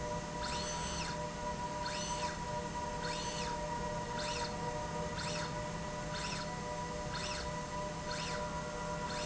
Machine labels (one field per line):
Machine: slide rail